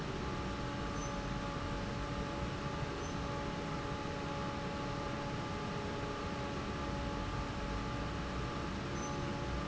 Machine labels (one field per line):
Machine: fan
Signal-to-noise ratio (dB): -6 dB